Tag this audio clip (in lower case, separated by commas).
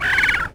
bird, wild animals, animal